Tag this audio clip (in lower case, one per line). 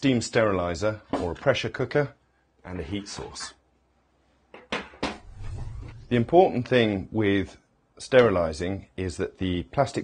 dishes, pots and pans